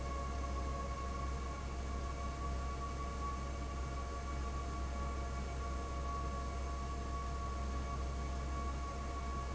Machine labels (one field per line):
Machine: fan